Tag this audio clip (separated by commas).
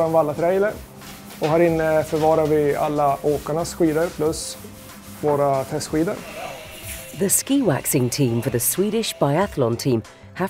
Speech